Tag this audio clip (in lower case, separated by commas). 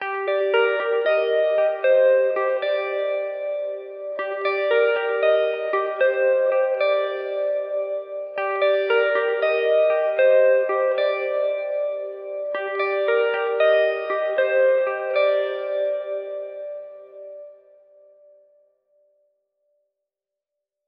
music, plucked string instrument, guitar, musical instrument